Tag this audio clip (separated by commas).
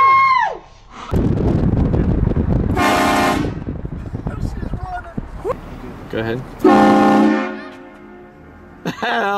train horning